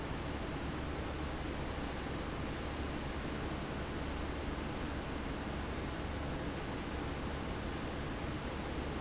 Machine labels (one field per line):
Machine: fan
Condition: abnormal